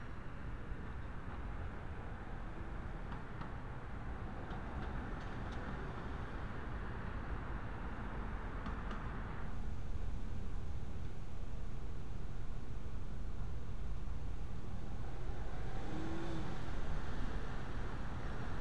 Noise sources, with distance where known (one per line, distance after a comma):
engine of unclear size, far